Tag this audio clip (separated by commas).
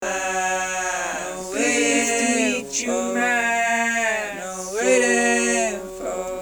Human voice